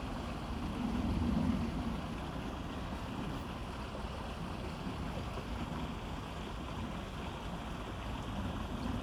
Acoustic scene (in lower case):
park